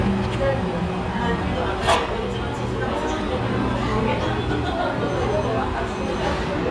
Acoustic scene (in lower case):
restaurant